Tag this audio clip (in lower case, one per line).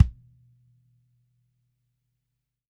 bass drum
music
drum
musical instrument
percussion